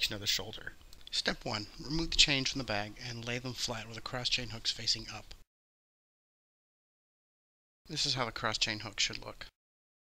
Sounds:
speech

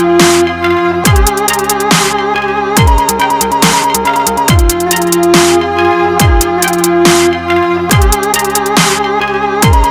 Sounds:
soundtrack music
music

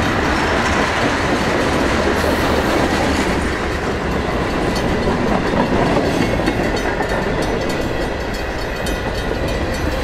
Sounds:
rail transport
railroad car
clickety-clack
train

